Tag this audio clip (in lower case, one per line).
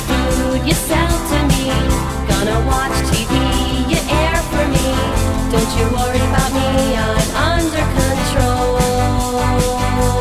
music
jingle (music)